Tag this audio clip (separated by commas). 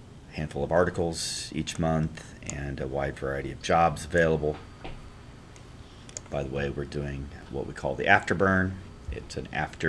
Speech